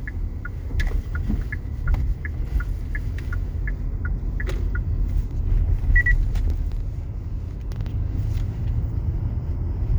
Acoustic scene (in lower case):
car